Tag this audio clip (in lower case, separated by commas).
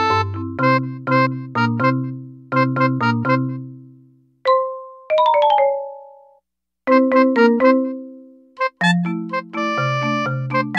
music